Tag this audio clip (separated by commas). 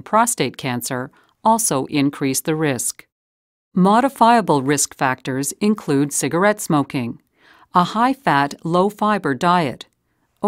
Speech